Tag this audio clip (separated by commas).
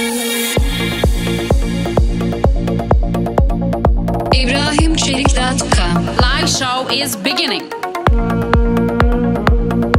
Music, Speech